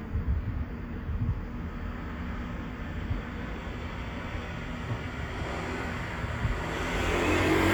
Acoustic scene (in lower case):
street